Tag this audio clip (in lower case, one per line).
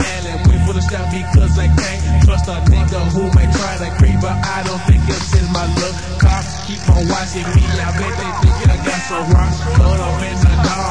music